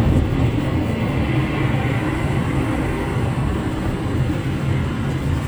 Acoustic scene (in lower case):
car